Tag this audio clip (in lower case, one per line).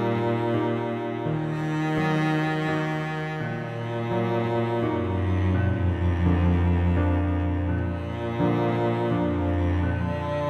music
sad music